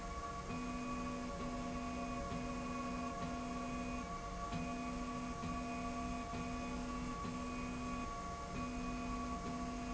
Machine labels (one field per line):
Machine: slide rail